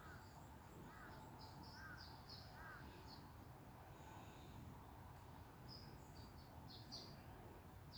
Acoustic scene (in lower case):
park